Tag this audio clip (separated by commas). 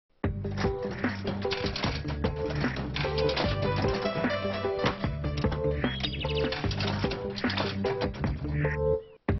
Music